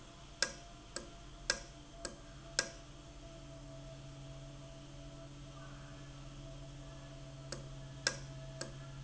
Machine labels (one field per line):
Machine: valve